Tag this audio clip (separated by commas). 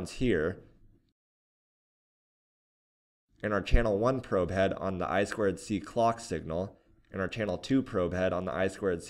Speech